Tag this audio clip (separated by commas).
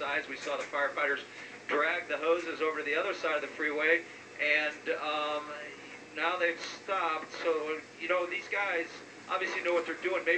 Speech